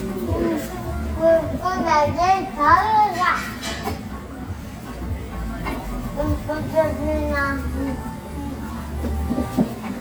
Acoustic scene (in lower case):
restaurant